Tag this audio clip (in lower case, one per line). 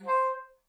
musical instrument
music
wind instrument